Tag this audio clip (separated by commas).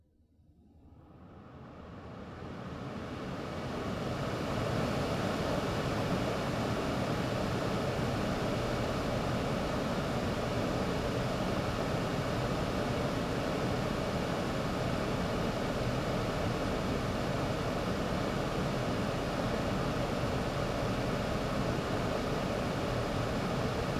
Mechanisms